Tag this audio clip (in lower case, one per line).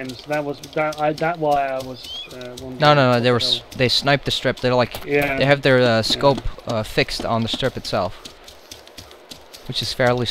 speech